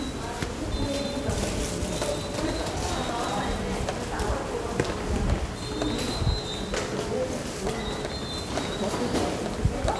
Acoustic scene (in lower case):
subway station